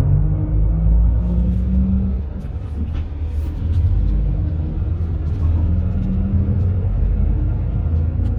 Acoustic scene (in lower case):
bus